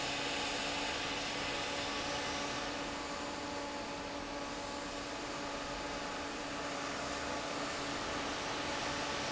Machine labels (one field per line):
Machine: fan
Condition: normal